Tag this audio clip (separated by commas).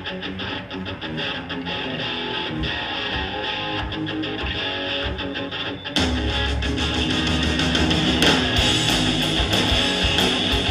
Bass guitar, Plucked string instrument, Musical instrument, Strum, Guitar, Electric guitar, Music, Acoustic guitar